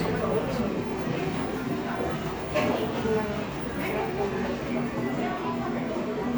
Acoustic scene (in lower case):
cafe